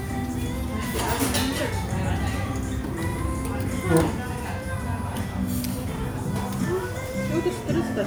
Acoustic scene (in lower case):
restaurant